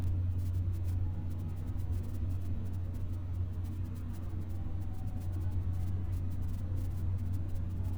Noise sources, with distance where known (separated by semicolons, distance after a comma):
engine of unclear size